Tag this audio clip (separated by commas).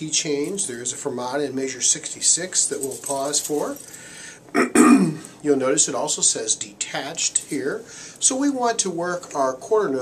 Speech